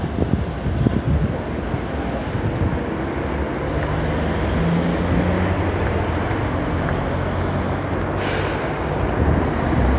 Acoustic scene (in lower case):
street